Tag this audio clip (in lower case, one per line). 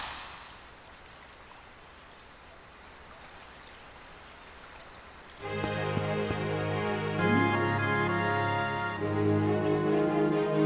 music